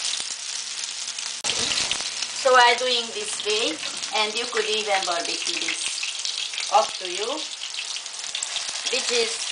A woman speaking, sizzling, frying